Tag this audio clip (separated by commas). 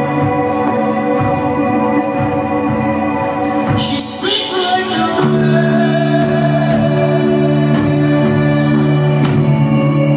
Music